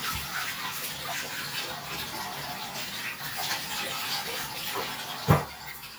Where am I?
in a restroom